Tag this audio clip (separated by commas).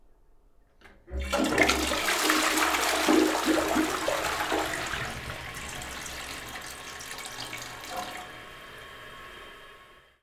Domestic sounds, Toilet flush